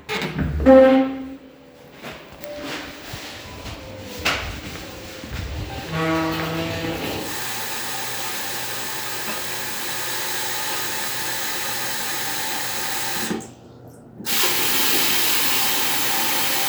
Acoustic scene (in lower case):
restroom